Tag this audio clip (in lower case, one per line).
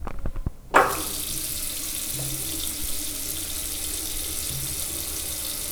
liquid
water tap
home sounds